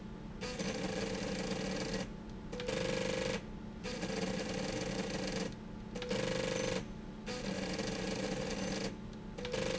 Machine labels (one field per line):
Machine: slide rail